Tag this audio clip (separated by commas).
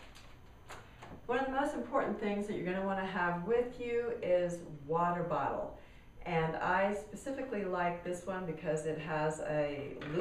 Speech